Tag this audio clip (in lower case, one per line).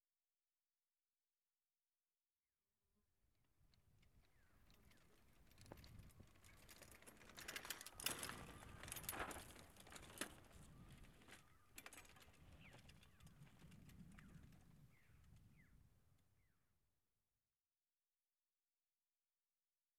vehicle
bicycle